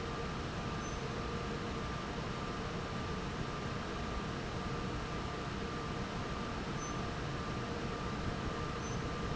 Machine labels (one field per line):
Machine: fan